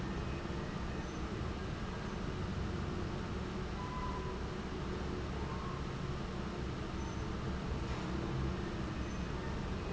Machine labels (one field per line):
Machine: fan